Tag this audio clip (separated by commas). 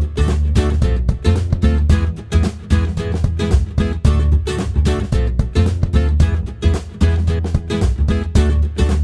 Music